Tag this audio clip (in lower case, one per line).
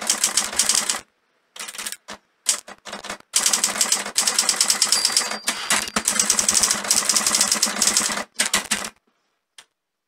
typing on typewriter